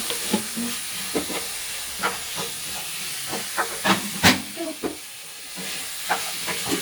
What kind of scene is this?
kitchen